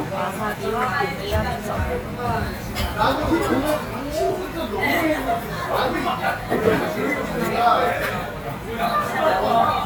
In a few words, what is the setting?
restaurant